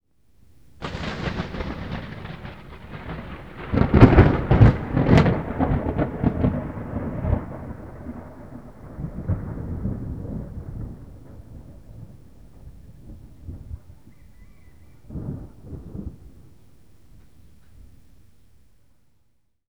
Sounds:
Thunderstorm, Thunder

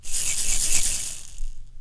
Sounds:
Rattle (instrument), Percussion, Music, Musical instrument

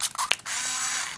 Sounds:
Mechanisms, Camera

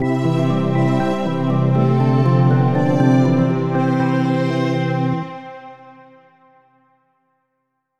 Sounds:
Keyboard (musical), Musical instrument, Music, Organ

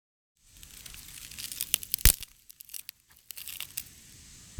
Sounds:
Crack, Wood

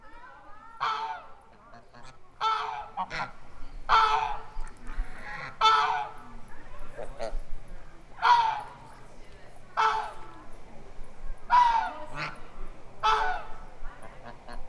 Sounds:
Animal, Fowl, livestock

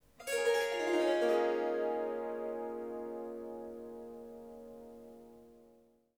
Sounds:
Musical instrument, Harp, Music

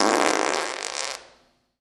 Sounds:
Fart

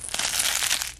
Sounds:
crinkling

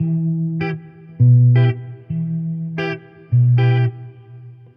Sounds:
Musical instrument, Guitar, Plucked string instrument, Electric guitar, Music

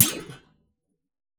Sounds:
thud

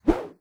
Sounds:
swoosh

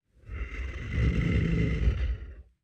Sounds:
Animal

